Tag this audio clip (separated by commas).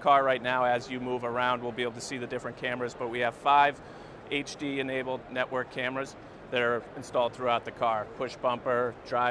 Speech